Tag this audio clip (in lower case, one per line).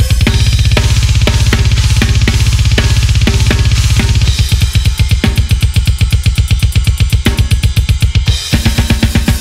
playing bass drum